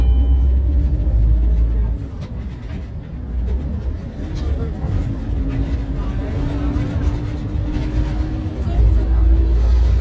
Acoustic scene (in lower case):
bus